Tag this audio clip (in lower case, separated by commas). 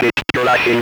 human voice, speech